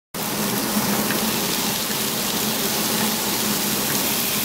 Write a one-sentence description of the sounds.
Loud sizzling and hissing